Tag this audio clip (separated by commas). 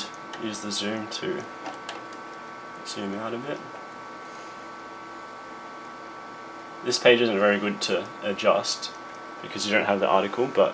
Speech